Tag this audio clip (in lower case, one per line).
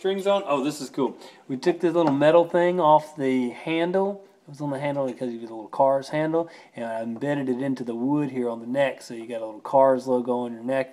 speech